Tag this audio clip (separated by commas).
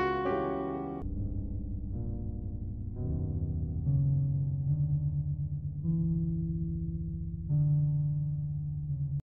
Music